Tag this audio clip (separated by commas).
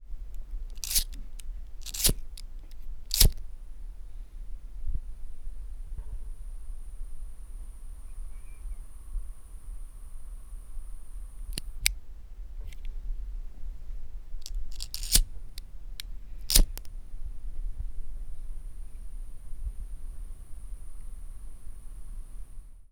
Fire